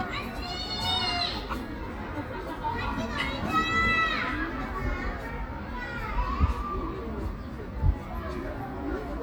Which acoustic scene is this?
park